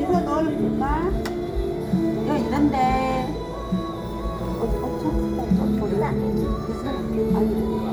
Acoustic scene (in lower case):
crowded indoor space